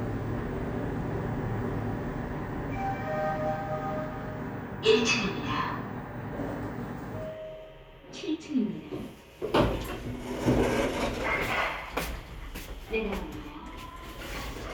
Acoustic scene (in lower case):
elevator